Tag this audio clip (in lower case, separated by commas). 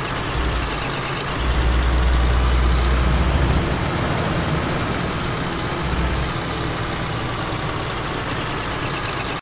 truck